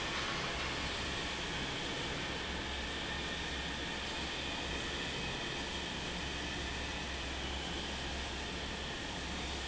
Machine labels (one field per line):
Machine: fan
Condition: normal